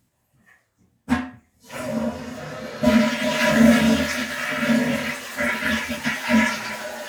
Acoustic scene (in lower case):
restroom